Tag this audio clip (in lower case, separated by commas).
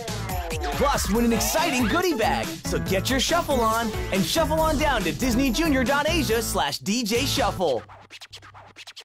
speech, music